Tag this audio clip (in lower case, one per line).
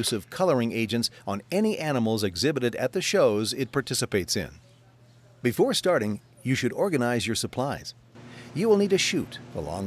speech